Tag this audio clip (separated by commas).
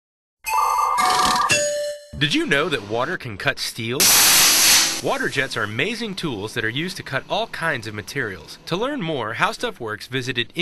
Music, Speech, inside a large room or hall